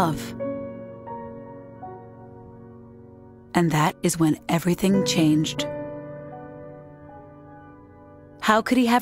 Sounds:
Speech, Music

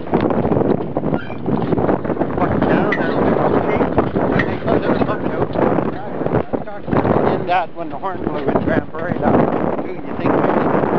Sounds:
Speech

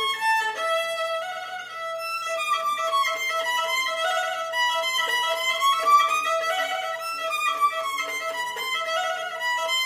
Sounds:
Violin, Musical instrument, Music

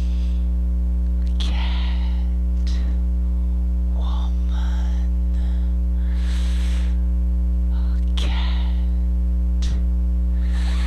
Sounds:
Speech

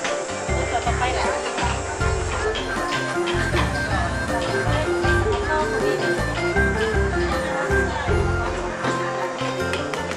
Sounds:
Speech, Music

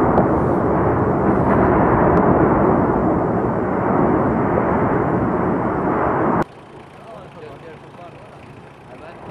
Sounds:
volcano explosion

